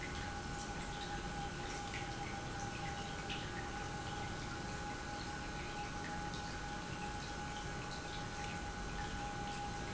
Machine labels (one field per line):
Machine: pump